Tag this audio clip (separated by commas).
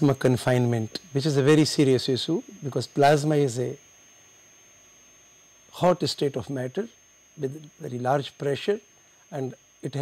Speech